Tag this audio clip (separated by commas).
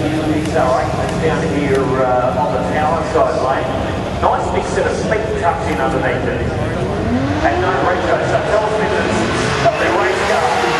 Speech, Car, Motor vehicle (road), Vehicle